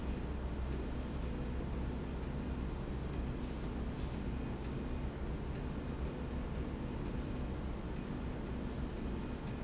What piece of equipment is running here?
slide rail